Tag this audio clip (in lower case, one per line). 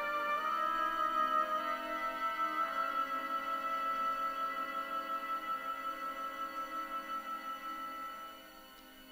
music